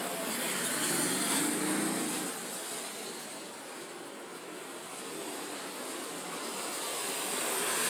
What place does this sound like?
residential area